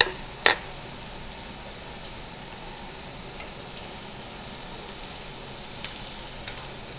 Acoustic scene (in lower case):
restaurant